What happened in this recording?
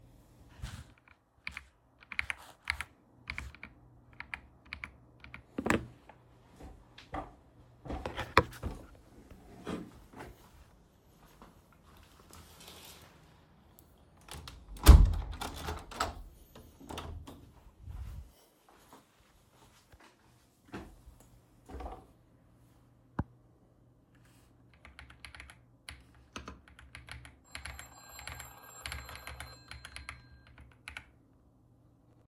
I was typing an article on the keyboard, then I felt cold and went to close the window, and just as I was typing on the keyboard, my mum called me.